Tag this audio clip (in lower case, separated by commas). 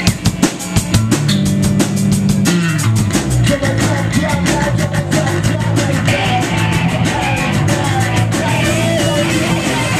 rimshot